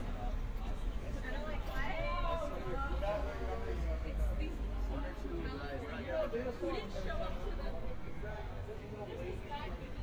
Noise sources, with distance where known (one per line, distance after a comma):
person or small group talking, near